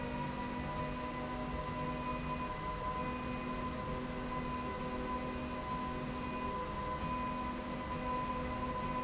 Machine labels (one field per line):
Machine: slide rail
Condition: normal